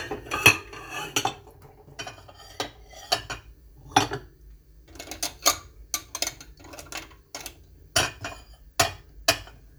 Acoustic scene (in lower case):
kitchen